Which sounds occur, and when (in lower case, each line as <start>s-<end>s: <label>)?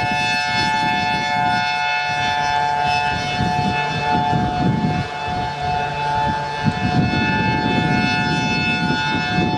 0.0s-9.5s: siren
0.0s-9.5s: wind